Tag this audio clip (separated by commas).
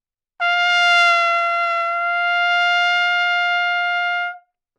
Brass instrument, Musical instrument, Trumpet, Music